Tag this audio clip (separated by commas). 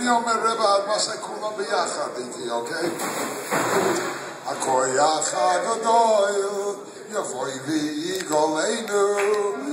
Speech, Male singing